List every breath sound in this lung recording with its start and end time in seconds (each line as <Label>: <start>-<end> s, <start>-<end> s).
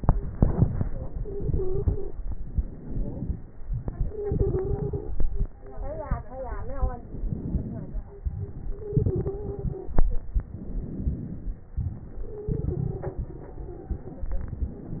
Inhalation: 1.11-2.15 s
Exhalation: 2.16-3.50 s
Stridor: 1.16-2.14 s, 4.05-5.09 s, 8.77-9.93 s, 12.23-13.32 s, 13.69-14.50 s